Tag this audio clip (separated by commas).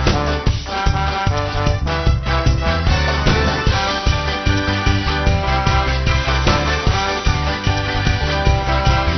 Music